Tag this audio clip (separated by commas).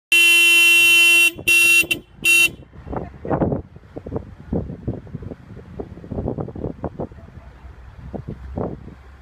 car horn